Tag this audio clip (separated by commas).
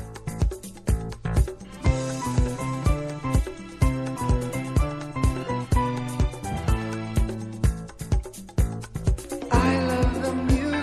Music, Pop music